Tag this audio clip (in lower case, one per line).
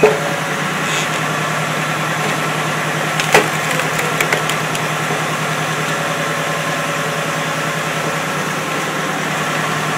chop